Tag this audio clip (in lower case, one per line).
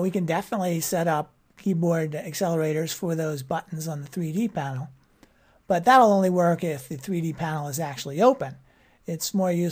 speech